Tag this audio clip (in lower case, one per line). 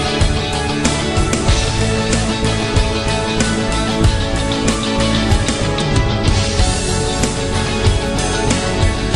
sampler
music